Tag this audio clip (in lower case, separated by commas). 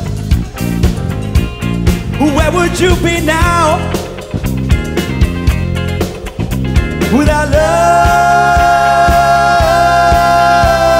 music, vocal music